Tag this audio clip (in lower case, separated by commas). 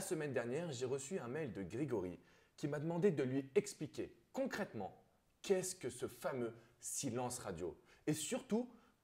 speech